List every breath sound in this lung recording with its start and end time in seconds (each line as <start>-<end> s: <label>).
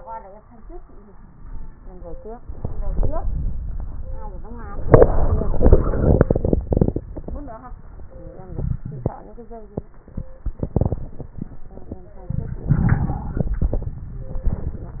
1.10-2.23 s: exhalation
2.53-4.33 s: inhalation
2.53-4.33 s: crackles
8.48-9.09 s: wheeze
12.29-13.33 s: inhalation
12.29-13.33 s: crackles
13.32-14.29 s: exhalation
13.37-14.29 s: crackles